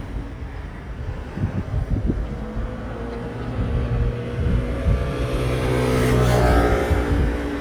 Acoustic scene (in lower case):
street